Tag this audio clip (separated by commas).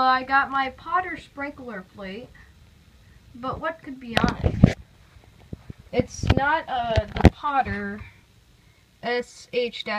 Speech